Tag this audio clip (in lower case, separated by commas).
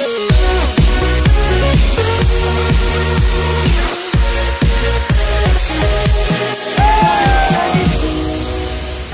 music, speech